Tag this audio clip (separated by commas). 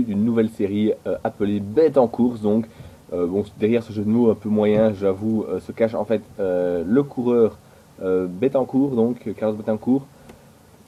Speech